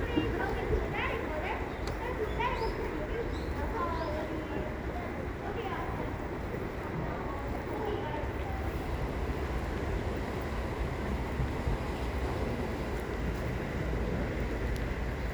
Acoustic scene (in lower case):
park